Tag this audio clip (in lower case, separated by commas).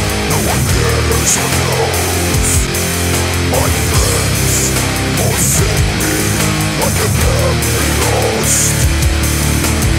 rhythm and blues, music